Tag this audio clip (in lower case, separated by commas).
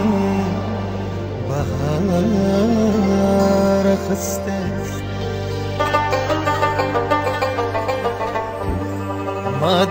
music, traditional music